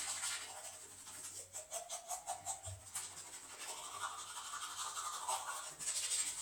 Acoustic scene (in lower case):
restroom